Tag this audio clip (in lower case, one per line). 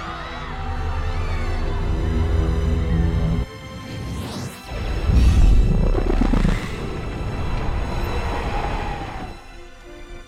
firing cannon